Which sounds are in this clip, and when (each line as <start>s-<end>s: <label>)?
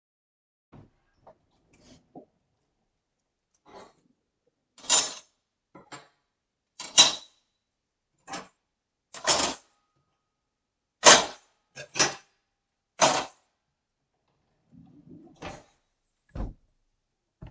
3.5s-4.2s: wardrobe or drawer
4.7s-16.5s: cutlery and dishes
15.4s-16.6s: wardrobe or drawer